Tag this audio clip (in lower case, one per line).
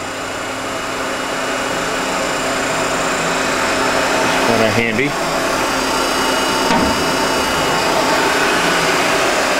speech